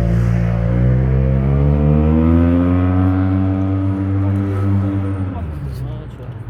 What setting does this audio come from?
street